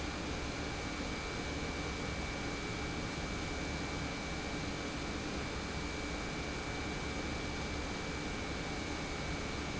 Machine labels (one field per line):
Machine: pump